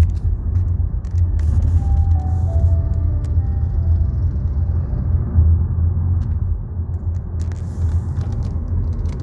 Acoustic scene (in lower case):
car